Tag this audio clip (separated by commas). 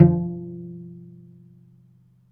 Musical instrument, Music, Bowed string instrument